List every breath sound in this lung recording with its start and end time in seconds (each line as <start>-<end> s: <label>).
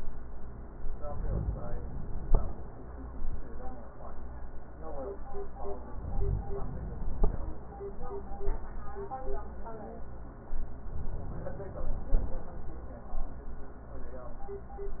0.87-2.26 s: inhalation
5.83-7.22 s: inhalation
10.83-12.22 s: inhalation